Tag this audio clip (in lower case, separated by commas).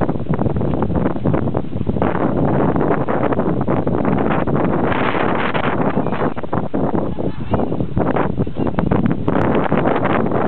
speech, bleat, sheep